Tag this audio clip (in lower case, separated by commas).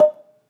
xylophone, music, mallet percussion, musical instrument, percussion